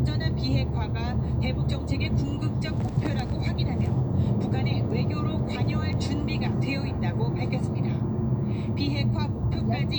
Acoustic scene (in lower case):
car